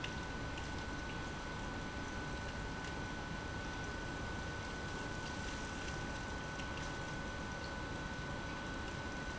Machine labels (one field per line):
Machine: pump